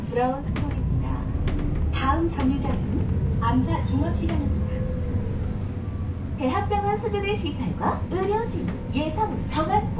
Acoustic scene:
bus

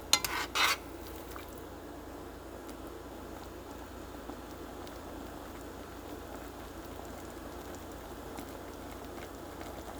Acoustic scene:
kitchen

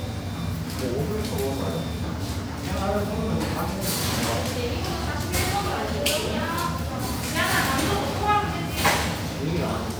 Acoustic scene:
cafe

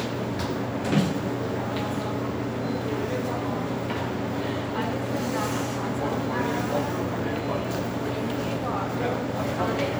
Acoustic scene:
subway station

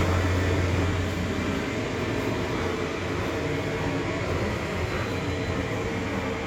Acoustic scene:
subway station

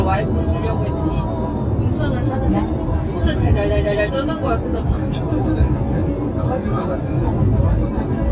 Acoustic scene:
car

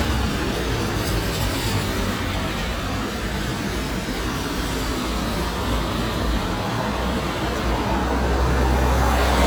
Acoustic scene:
street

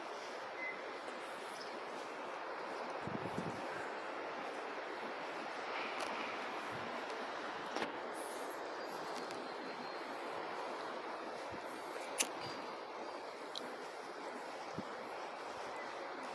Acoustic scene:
residential area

